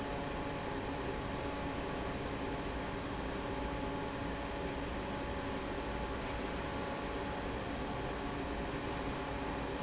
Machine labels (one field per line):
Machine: fan